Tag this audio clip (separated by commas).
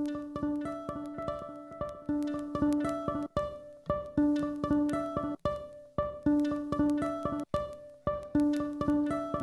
fiddle, Bowed string instrument, Pizzicato